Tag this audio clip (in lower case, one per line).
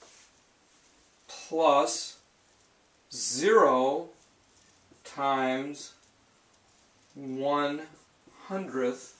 speech